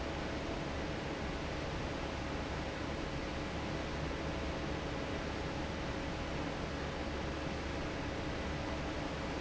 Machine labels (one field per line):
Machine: fan